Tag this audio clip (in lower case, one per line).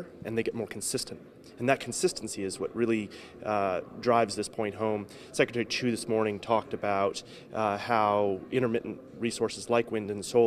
speech